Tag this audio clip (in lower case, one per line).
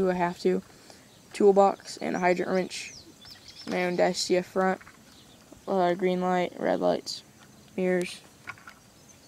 speech